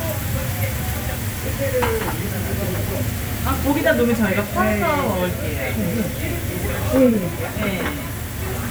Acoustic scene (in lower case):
restaurant